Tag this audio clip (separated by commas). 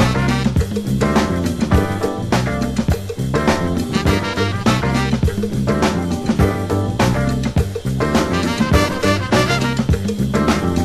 Music